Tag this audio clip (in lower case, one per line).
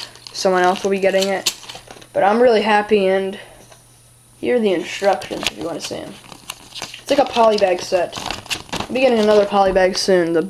inside a small room
speech